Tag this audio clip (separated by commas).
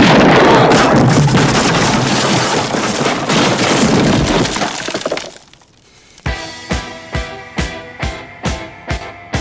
Music